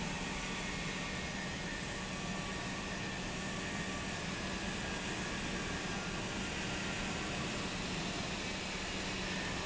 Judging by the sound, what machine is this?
pump